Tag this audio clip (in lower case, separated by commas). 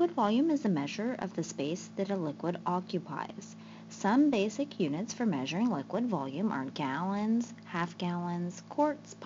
speech